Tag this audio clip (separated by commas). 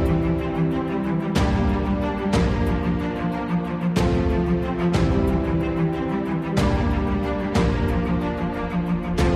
Music